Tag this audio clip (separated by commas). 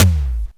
Percussion, Musical instrument, Drum, Music